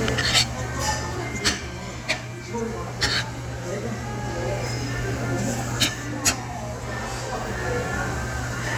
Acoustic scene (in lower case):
restaurant